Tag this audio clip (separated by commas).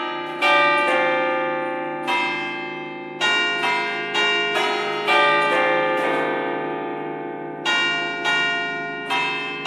church bell ringing, Church bell